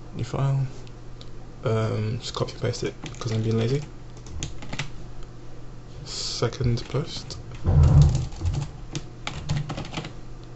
A man talks and then types on a computer keyboard